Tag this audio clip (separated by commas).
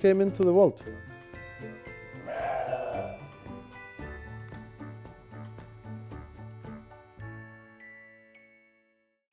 Music, Speech, Sheep